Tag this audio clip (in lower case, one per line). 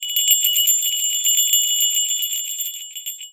bell